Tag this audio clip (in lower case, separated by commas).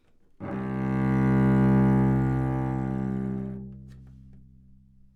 bowed string instrument, music, musical instrument